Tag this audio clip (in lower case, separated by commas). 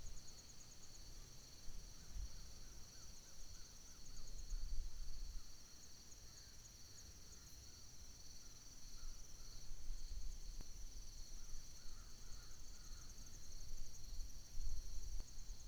crow, wild animals, bird, animal